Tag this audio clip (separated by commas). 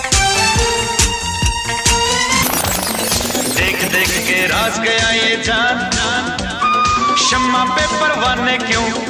Music, Music of Bollywood, Disco